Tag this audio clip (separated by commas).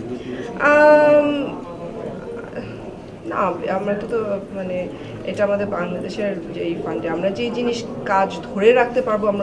Speech